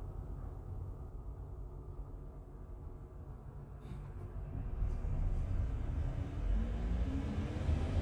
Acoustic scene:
bus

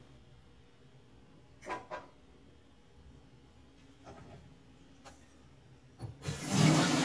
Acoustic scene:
kitchen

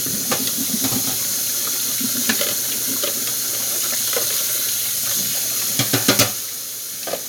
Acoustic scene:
kitchen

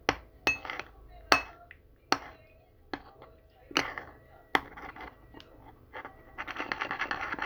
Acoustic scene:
kitchen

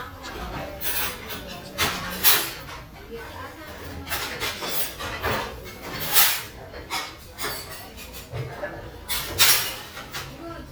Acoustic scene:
restaurant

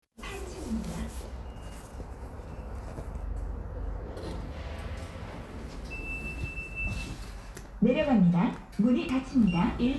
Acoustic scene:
elevator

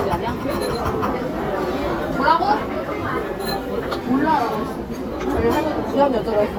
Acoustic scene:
restaurant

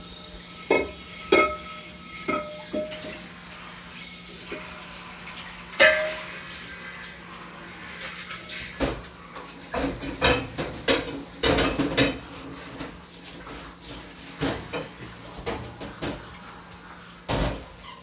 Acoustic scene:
kitchen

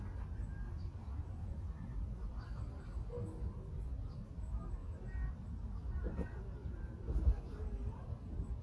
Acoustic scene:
park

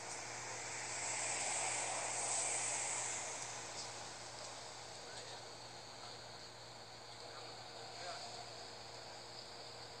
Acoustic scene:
street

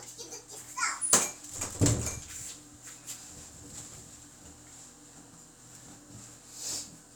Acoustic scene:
restroom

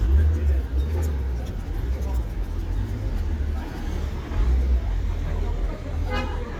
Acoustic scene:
residential area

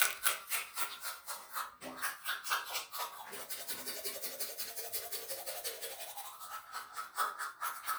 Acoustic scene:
restroom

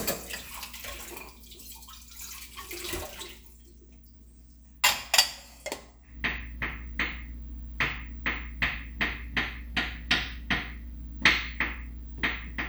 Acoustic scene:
kitchen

